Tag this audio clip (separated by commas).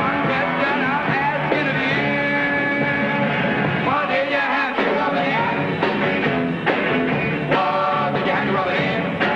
Music